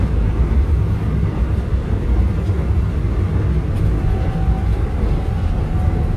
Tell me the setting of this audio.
subway train